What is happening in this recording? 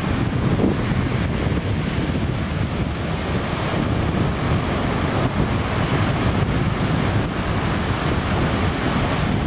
Wind blows and waves crash